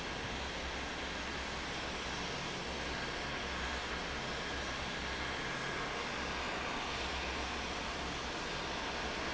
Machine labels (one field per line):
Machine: fan